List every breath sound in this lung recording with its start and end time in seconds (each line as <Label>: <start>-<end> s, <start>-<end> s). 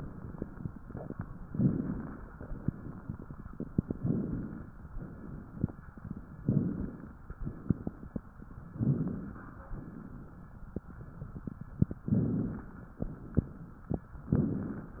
Inhalation: 1.50-2.34 s, 3.91-4.75 s, 6.41-7.17 s, 8.77-9.64 s, 12.07-12.92 s, 14.32-15.00 s
Exhalation: 2.39-3.31 s, 4.92-5.75 s, 9.73-10.61 s, 13.00-13.92 s